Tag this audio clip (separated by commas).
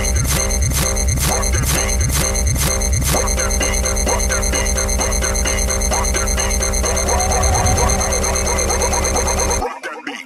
Music